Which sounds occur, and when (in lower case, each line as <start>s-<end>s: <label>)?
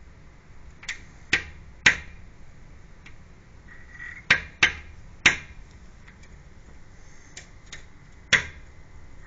0.0s-9.2s: motor vehicle (road)
0.0s-9.2s: wind
0.8s-1.0s: glass
1.2s-1.5s: glass
1.8s-2.1s: glass
3.0s-3.1s: glass
3.7s-4.2s: crow
4.2s-4.4s: glass
4.6s-4.8s: glass
5.2s-5.4s: glass
5.6s-5.8s: generic impact sounds
6.0s-6.3s: generic impact sounds
6.8s-7.4s: surface contact
7.3s-7.5s: glass
7.6s-7.8s: glass
8.0s-8.2s: generic impact sounds
8.3s-8.6s: glass